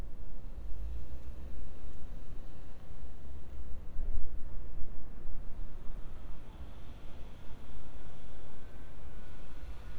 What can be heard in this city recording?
background noise